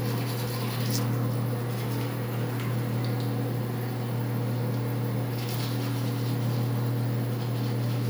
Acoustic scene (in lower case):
restroom